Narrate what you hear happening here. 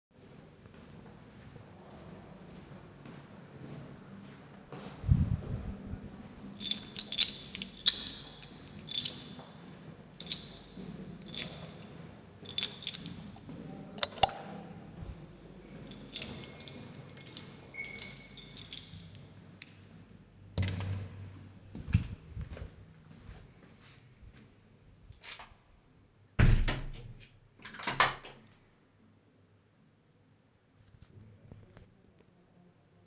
I was walking on the hallway, played with my keychain and turned on the light and entered into my room.